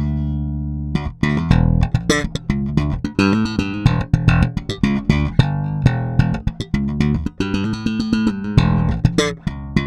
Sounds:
Music

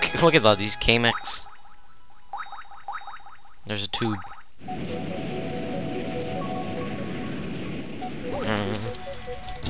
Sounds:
Music, Speech

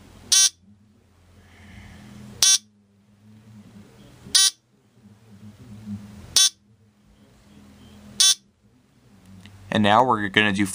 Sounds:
Speech

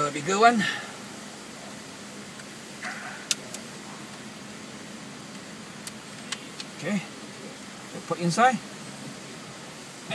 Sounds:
Speech

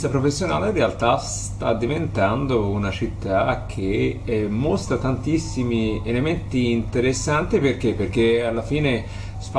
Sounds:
Speech

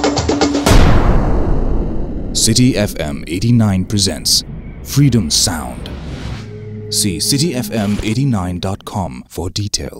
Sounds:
Music, Speech

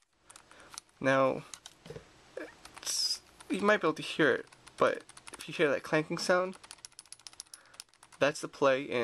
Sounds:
Speech

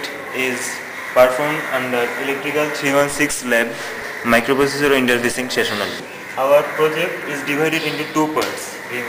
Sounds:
Speech

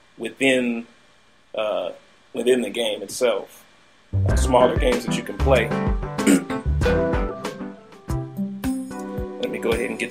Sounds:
Speech, Music

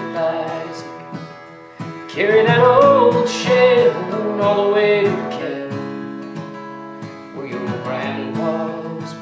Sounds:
Music, Male singing

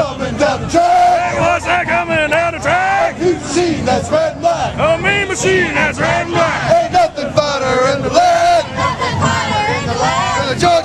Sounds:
Music

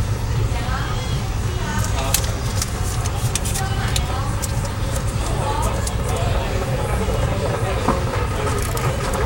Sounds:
Speech

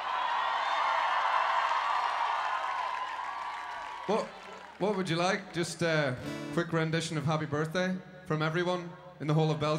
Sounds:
Speech, Music

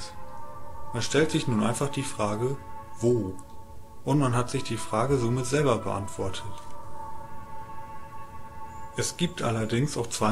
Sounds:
Speech, outside, rural or natural, Music

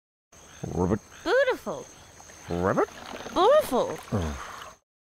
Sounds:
Speech, Frog

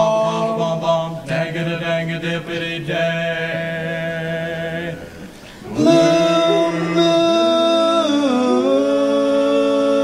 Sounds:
Singing, A capella, Vocal music

